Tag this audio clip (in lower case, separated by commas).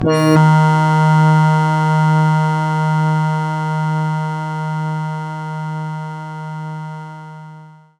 keyboard (musical), musical instrument, music, organ